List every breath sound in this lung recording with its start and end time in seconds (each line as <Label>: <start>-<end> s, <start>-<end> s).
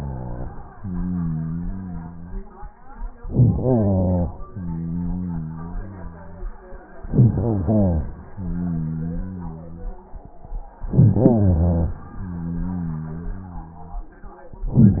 Inhalation: 3.19-4.43 s, 6.97-8.22 s, 10.77-12.10 s
Exhalation: 4.41-6.59 s, 8.20-10.38 s, 12.12-14.15 s